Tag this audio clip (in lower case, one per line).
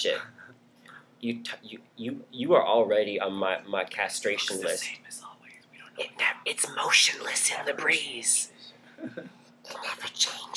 speech
male speech